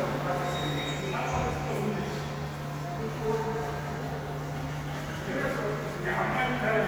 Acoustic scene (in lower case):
subway station